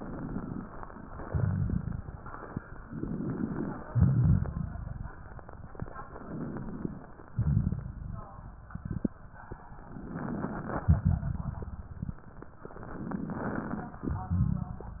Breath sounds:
0.00-0.70 s: inhalation
1.19-2.21 s: exhalation
1.19-2.21 s: crackles
2.79-3.82 s: inhalation
3.86-5.08 s: exhalation
3.86-5.08 s: crackles
6.07-7.09 s: inhalation
7.28-8.50 s: exhalation
7.28-8.50 s: crackles
9.75-10.88 s: inhalation
10.86-12.08 s: exhalation
10.86-12.08 s: crackles
12.77-14.05 s: inhalation
14.06-15.00 s: exhalation
14.06-15.00 s: crackles

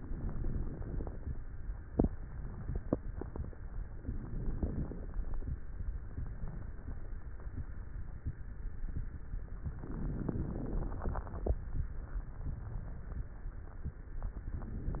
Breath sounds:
0.00-1.35 s: inhalation
0.00-1.35 s: crackles
4.06-5.41 s: inhalation
4.06-5.41 s: crackles
9.75-11.49 s: inhalation
9.75-11.49 s: crackles
14.05-15.00 s: inhalation
14.05-15.00 s: crackles

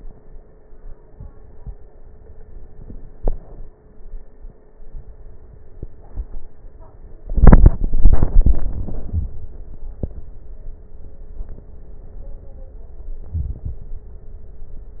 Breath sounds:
13.23-13.90 s: inhalation

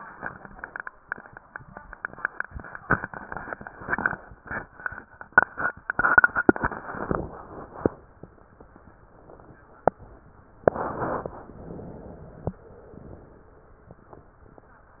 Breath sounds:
6.72-8.09 s: inhalation
11.29-12.45 s: inhalation

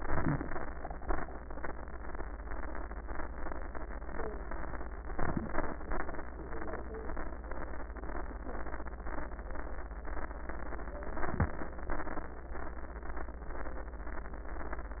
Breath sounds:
5.11-5.77 s: crackles
5.13-5.79 s: inhalation
5.84-6.50 s: exhalation
5.84-6.50 s: crackles
11.12-11.78 s: inhalation
11.12-11.78 s: crackles
11.81-12.48 s: exhalation
11.81-12.48 s: crackles

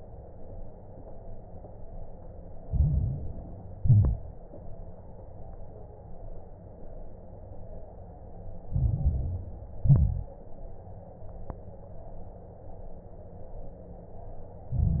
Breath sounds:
2.62-3.74 s: inhalation
2.62-3.74 s: crackles
3.78-4.39 s: exhalation
3.78-4.39 s: crackles
8.70-9.82 s: inhalation
8.70-9.82 s: crackles
9.82-10.34 s: exhalation
9.82-10.34 s: crackles
14.71-15.00 s: exhalation
14.71-15.00 s: crackles

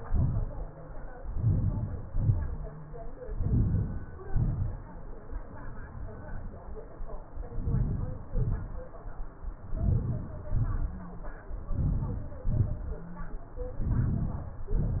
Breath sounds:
1.43-1.96 s: inhalation
2.10-2.53 s: exhalation
3.41-3.96 s: inhalation
4.38-4.84 s: exhalation
7.60-8.19 s: inhalation
8.43-8.87 s: exhalation
9.76-10.38 s: inhalation
10.57-11.11 s: exhalation
11.81-12.29 s: inhalation
12.54-13.04 s: inhalation
13.89-14.58 s: inhalation
14.69-15.00 s: exhalation

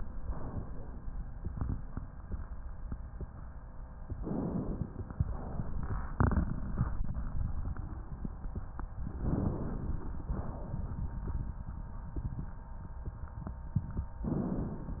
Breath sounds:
4.14-5.18 s: inhalation
5.18-6.11 s: exhalation
9.17-10.23 s: inhalation
10.23-11.14 s: exhalation
14.27-15.00 s: inhalation

